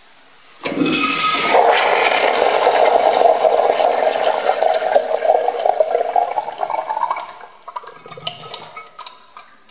A toilet flushes and water gurgles as it drains